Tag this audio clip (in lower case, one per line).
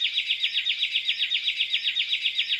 animal
bird
tweet
wild animals
bird call